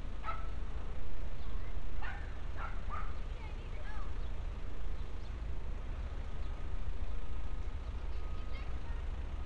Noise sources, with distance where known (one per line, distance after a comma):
unidentified alert signal, far
unidentified human voice
dog barking or whining, far